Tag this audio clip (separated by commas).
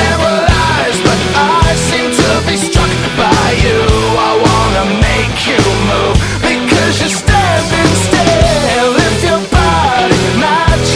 Music